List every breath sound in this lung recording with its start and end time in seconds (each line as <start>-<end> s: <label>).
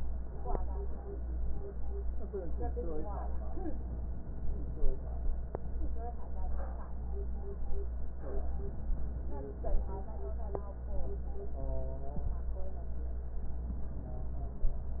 8.33-9.91 s: inhalation